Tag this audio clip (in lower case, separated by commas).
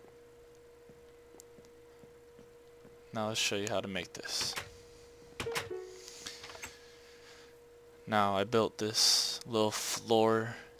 speech